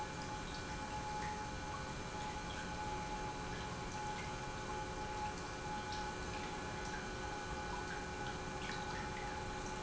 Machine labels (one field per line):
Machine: pump